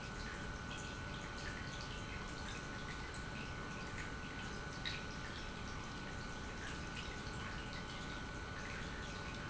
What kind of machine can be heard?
pump